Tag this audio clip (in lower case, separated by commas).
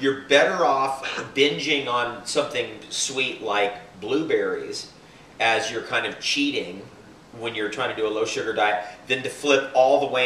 speech, inside a small room